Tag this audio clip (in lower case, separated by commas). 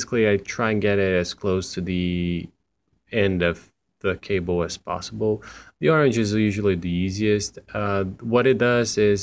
speech